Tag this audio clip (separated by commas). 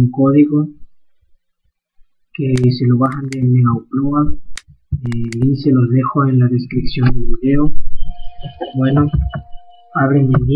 Speech